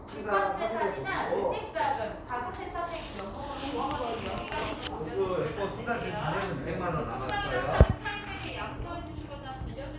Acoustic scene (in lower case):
crowded indoor space